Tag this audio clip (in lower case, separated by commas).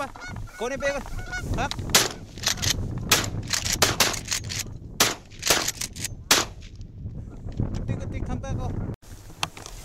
bird, gunshot, speech